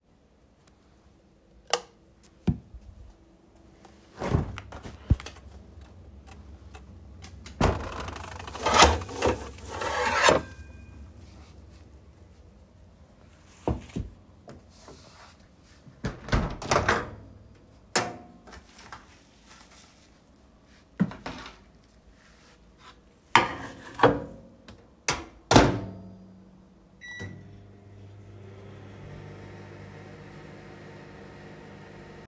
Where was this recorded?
kitchen